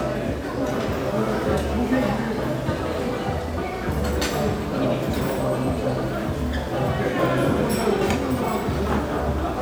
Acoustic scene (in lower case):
restaurant